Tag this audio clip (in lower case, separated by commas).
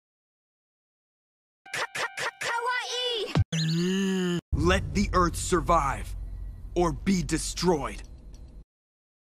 speech, music